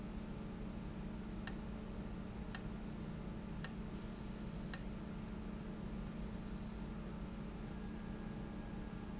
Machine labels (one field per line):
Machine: valve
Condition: abnormal